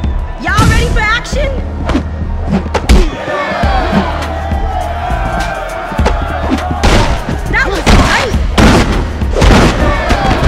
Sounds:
Speech

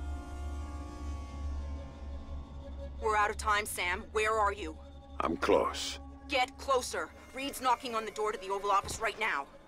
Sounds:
Speech

